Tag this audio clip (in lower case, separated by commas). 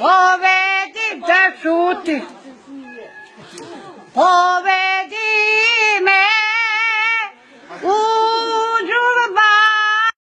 speech, singing